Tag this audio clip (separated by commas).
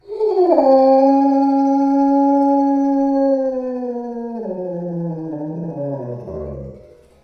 Dog, Domestic animals, Animal